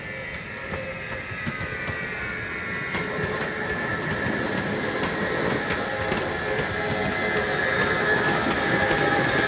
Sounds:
clickety-clack, train, rail transport, train wagon

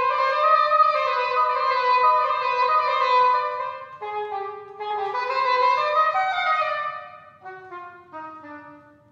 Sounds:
wind instrument

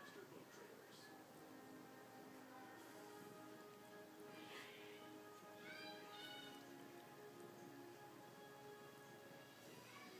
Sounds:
music, speech

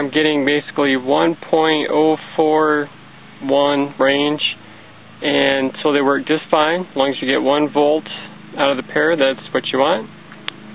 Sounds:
speech

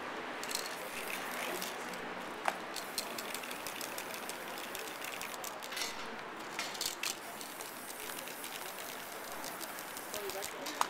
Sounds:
spray

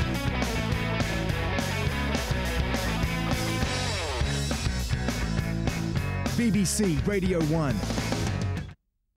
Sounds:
speech, music

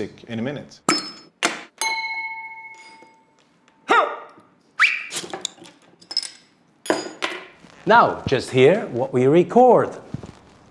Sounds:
speech

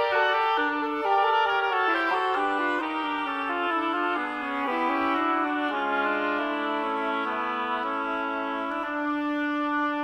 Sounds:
music, musical instrument

